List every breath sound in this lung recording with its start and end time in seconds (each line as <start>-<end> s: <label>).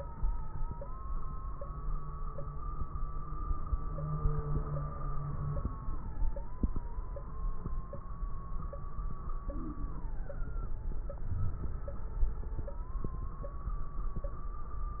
11.30-11.89 s: inhalation
11.30-11.89 s: crackles